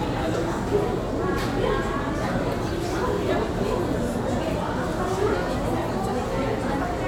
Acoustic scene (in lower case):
crowded indoor space